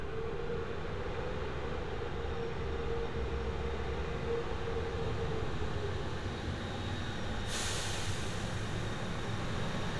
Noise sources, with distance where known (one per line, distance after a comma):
large-sounding engine